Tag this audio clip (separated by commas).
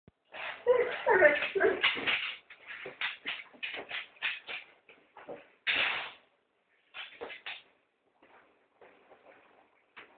Animal